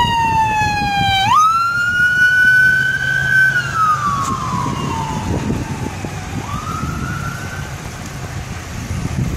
An emergency siren is going off